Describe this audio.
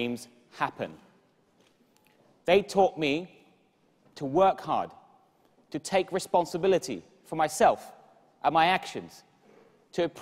A man is speaking clearly